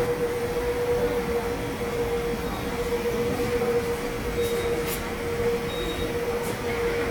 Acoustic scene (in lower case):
subway station